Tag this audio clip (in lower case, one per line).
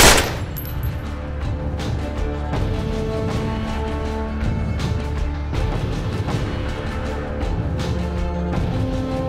music